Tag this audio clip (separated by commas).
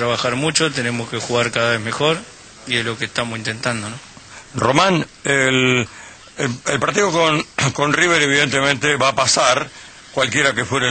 Speech